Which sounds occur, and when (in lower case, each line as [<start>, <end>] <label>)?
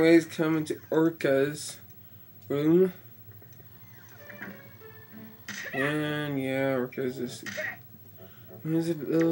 [0.00, 1.73] man speaking
[0.00, 9.31] mechanisms
[0.99, 1.06] tick
[1.17, 1.23] tick
[1.85, 1.91] tick
[1.99, 2.27] breathing
[2.38, 2.44] tick
[2.45, 2.94] man speaking
[3.29, 3.80] generic impact sounds
[3.36, 3.40] tick
[3.51, 3.54] tick
[3.81, 4.47] sound effect
[4.09, 5.43] music
[5.42, 5.87] sound effect
[5.69, 7.87] man speaking
[6.92, 9.31] music
[8.13, 8.57] breathing
[8.54, 9.31] man speaking
[9.15, 9.31] sound effect